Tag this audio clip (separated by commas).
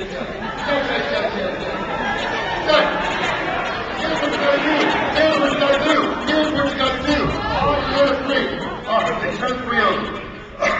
inside a large room or hall, Speech